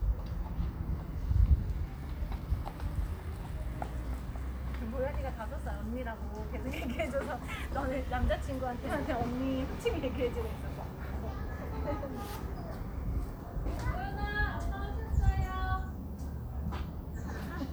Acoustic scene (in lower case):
residential area